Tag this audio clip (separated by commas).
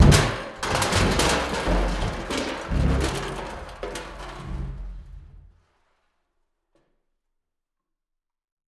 Crushing